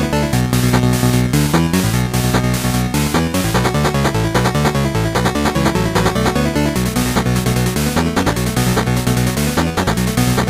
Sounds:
music

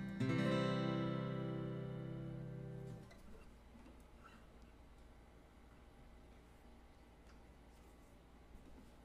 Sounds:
musical instrument, guitar, strum, plucked string instrument, music

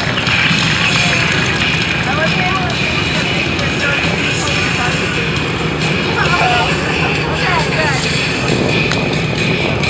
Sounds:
speech

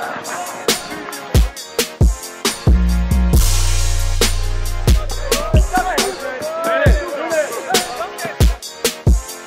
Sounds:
music, speech

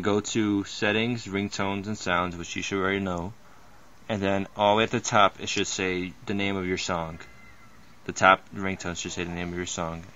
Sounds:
speech

